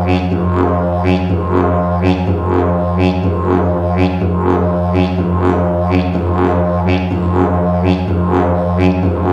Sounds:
playing didgeridoo

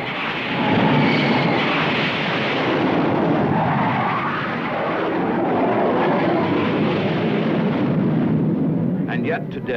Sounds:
Speech, Vehicle

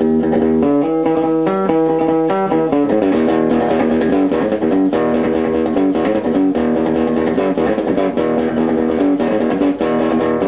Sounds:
Strum, Plucked string instrument, Musical instrument, playing bass guitar, Music, Electric guitar, Guitar, Bass guitar

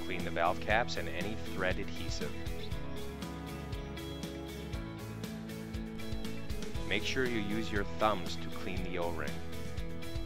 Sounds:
Music, Speech

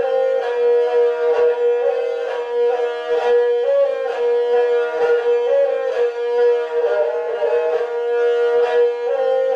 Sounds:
Bowed string instrument, Music, Musical instrument

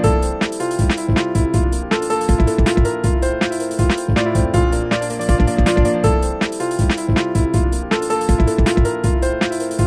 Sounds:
Music

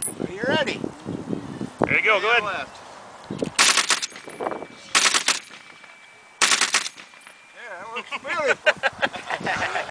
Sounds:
machine gun shooting, Machine gun, Speech

